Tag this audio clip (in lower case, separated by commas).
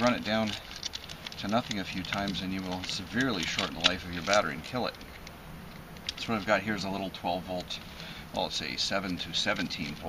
speech